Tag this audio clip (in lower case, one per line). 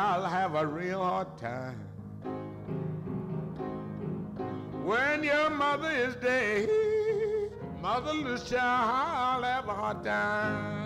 music
opera